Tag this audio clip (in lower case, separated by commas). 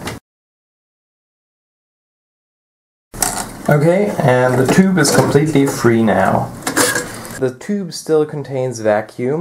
speech